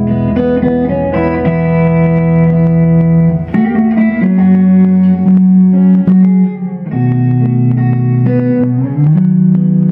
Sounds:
Musical instrument, Guitar, Plucked string instrument, Music

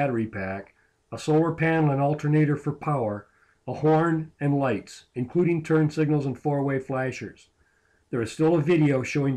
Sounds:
Speech

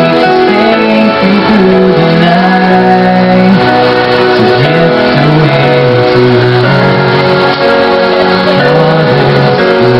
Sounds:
Lullaby, Music

